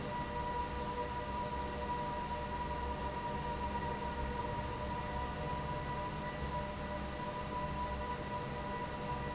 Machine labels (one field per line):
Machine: fan